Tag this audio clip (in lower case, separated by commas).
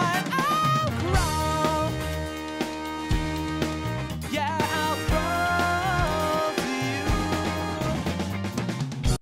music